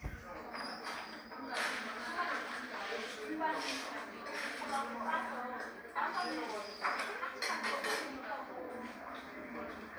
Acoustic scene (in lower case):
cafe